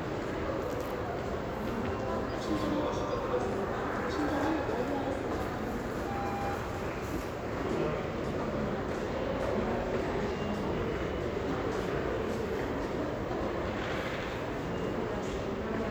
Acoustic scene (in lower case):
crowded indoor space